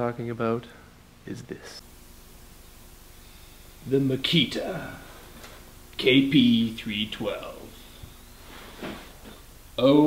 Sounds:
planing timber

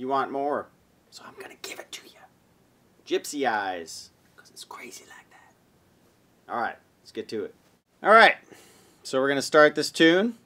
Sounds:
Speech

